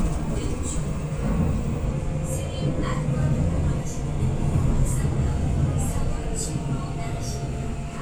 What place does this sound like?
subway train